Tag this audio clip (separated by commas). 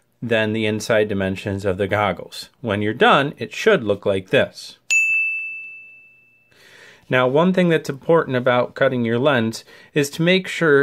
inside a small room, Speech